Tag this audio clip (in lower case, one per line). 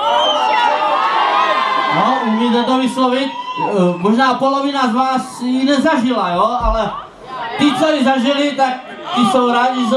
speech